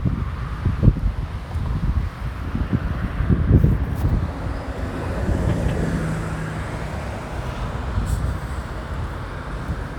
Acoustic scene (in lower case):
residential area